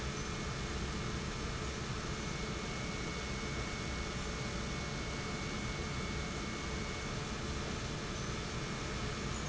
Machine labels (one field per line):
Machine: pump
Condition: normal